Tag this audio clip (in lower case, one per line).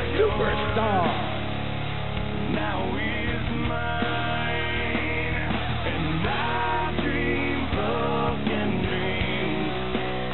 music
speech